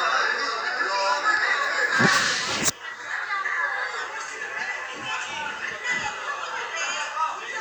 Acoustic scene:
crowded indoor space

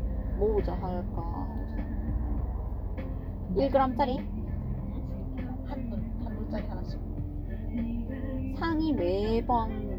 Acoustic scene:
car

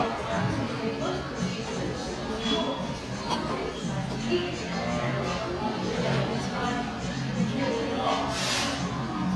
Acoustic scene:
cafe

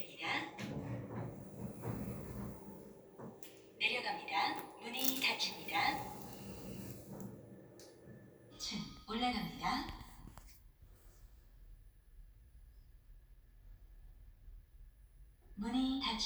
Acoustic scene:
elevator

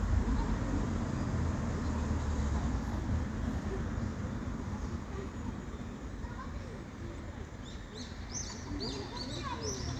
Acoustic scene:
residential area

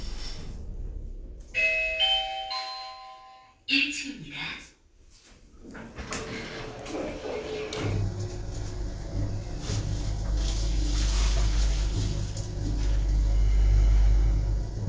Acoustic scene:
elevator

